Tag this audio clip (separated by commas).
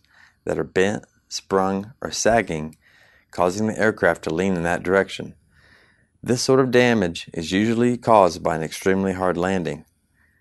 Speech